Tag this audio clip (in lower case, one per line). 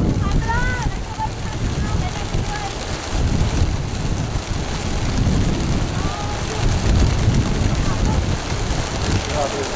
pigeon
speech